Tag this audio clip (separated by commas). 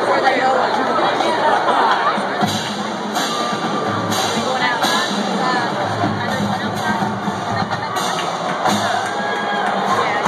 Music, Speech, Screaming, Cheering, Crowd